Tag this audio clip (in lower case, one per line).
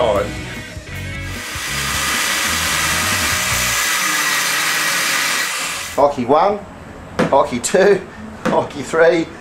music
inside a small room
speech